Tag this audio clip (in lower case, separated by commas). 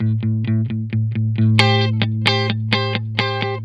guitar, music, electric guitar, musical instrument, plucked string instrument